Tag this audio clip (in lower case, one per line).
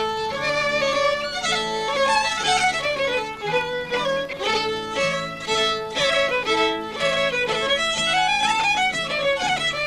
music
violin
musical instrument